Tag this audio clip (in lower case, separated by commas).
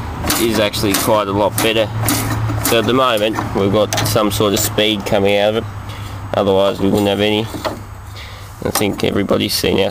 speech